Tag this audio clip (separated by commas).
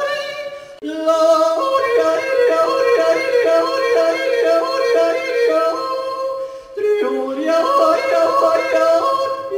Yodeling